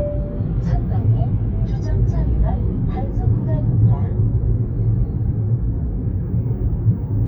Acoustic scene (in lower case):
car